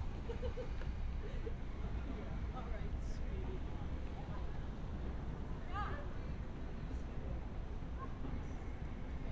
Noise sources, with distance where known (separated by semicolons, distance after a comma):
person or small group talking, near